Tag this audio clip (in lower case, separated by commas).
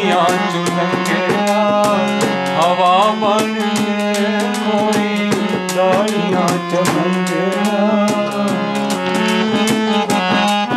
music, accordion